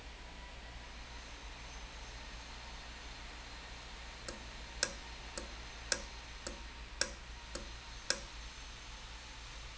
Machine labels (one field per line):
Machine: valve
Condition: normal